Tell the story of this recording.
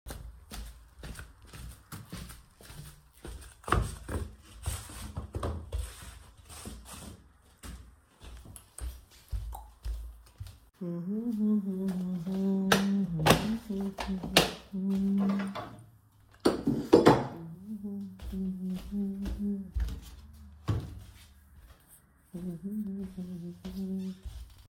I was in the living room walking. We can hear my footsteps and humming while I cleaned the sofa, the table, and turned on the light.